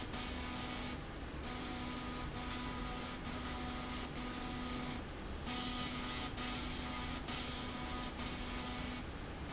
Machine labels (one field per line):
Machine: slide rail